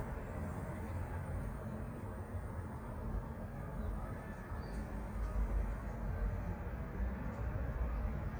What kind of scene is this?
residential area